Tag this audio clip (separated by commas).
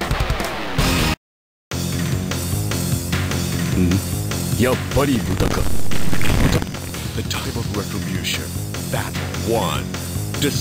Music, Speech